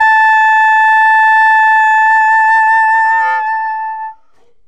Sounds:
music
wind instrument
musical instrument

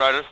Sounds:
man speaking
speech
human voice

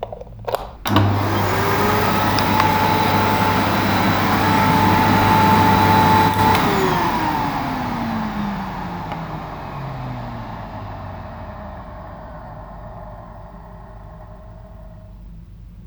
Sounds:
domestic sounds

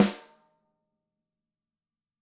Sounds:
drum
music
musical instrument
percussion
snare drum

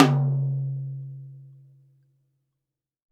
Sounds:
music
percussion
drum
musical instrument

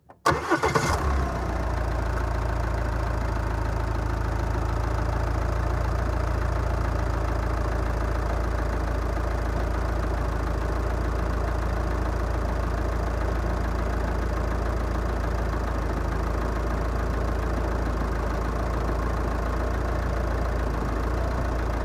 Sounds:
engine
engine starting

